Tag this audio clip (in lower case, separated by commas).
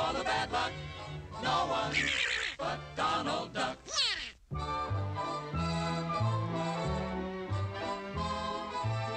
music, speech